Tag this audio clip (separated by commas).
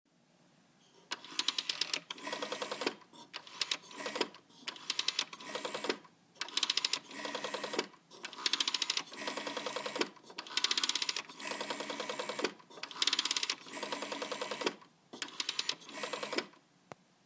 Alarm, Telephone